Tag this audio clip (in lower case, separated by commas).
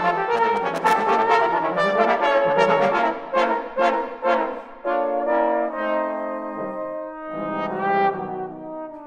brass instrument, playing trombone, trombone